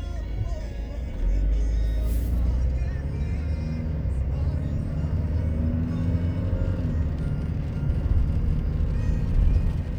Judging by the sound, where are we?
in a car